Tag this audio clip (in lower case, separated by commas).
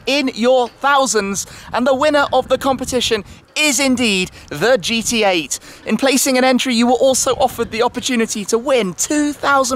speech